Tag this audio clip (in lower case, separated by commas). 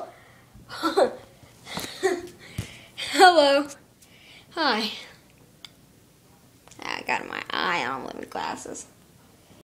speech